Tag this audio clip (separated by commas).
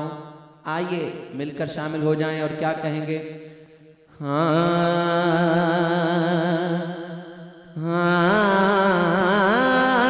Music, Speech